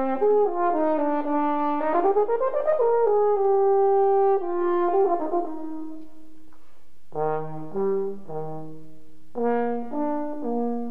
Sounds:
music, playing french horn, french horn

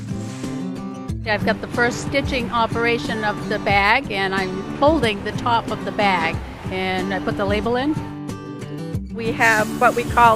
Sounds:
speech, music

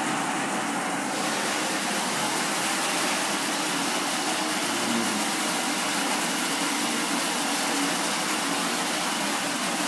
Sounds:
waterfall

